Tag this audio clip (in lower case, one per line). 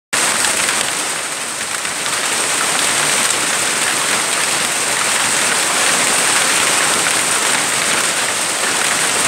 hail